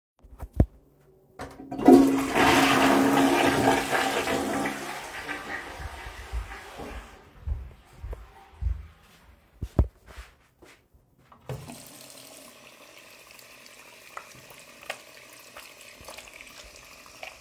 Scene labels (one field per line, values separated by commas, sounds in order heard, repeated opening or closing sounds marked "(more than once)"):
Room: bathroom, hallway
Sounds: toilet flushing, footsteps, running water